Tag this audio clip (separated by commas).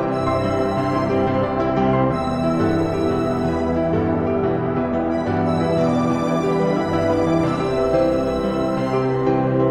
Music